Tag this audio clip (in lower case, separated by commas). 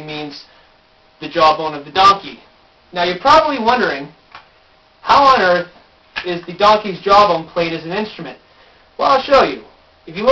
speech